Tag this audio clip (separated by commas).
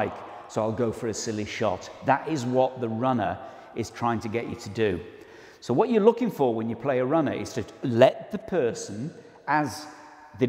playing squash